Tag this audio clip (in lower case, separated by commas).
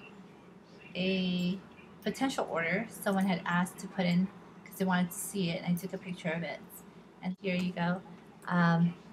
speech